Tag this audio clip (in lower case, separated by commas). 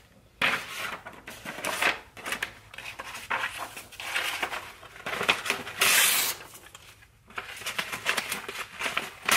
ripping paper